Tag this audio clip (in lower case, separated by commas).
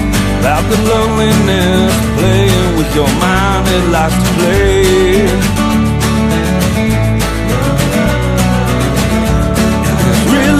music